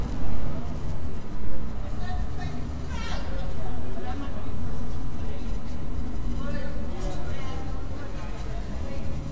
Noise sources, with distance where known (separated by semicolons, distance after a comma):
person or small group talking, near